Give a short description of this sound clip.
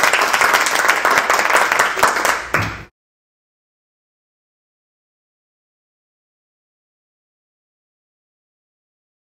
A group of people are applauding